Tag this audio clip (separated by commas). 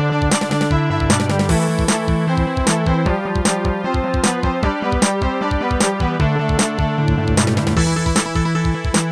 Music